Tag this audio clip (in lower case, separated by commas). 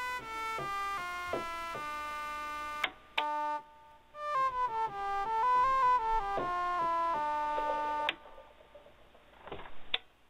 musical instrument, music, synthesizer